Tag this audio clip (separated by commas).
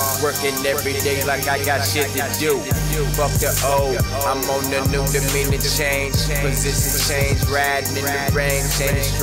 Music